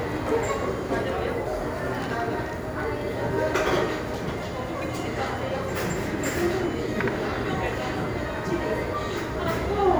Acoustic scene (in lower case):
cafe